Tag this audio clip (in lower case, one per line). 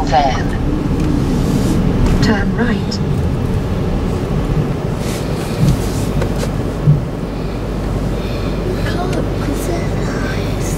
car
speech
vehicle